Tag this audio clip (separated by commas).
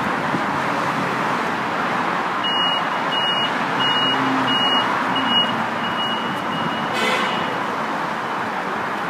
metro, Train, Vehicle, outside, urban or man-made, Rail transport